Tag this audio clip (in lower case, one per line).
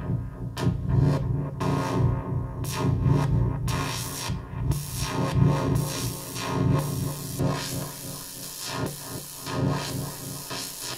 synthesizer
inside a small room
music